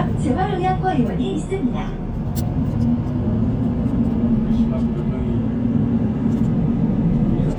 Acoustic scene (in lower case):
bus